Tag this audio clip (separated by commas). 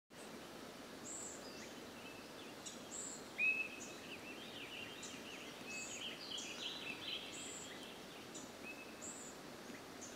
Environmental noise